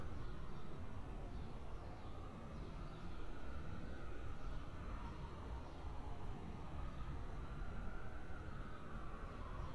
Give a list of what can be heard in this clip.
siren